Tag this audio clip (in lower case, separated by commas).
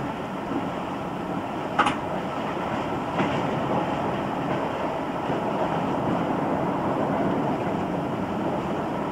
rail transport, clickety-clack, wind, train